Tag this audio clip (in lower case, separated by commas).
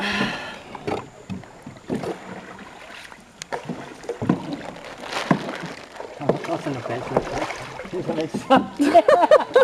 rowboat, vehicle, speech